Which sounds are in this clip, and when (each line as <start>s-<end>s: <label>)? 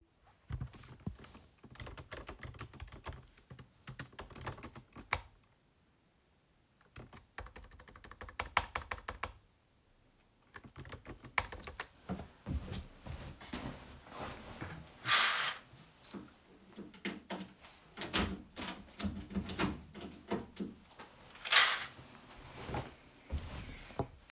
0.5s-5.3s: keyboard typing
6.9s-9.4s: keyboard typing
10.6s-11.9s: keyboard typing
15.0s-22.9s: window